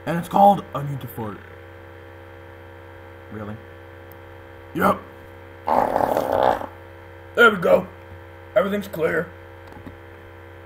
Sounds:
speech, inside a large room or hall

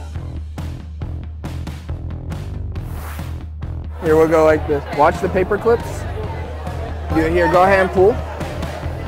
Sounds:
speech, music

